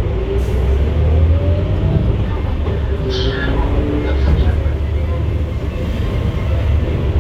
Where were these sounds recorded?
on a bus